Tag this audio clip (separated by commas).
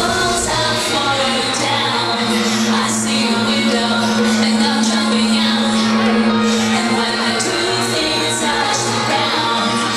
Music